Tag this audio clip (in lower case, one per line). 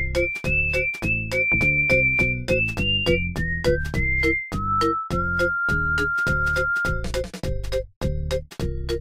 music